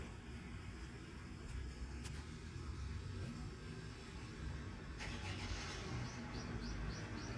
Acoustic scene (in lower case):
residential area